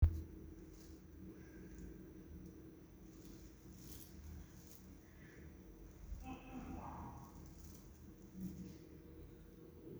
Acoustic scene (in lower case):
elevator